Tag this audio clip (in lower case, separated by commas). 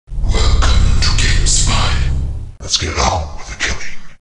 speech